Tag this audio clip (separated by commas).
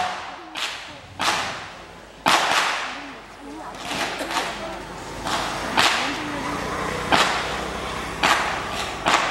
Speech